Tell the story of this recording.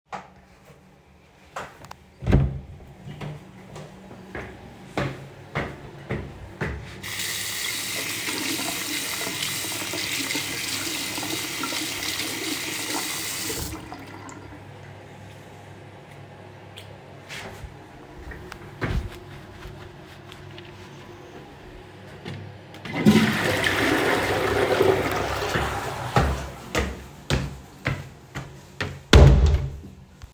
I open the toilet door and step inside. I turn on the tap and run water in the sink. After using the toilet I flush it and dry my hands with a towel.